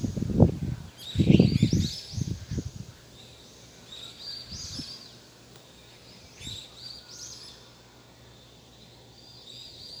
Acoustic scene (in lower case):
park